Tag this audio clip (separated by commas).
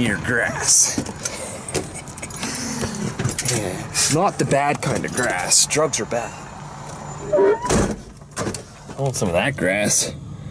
Speech, Truck, Vehicle, outside, urban or man-made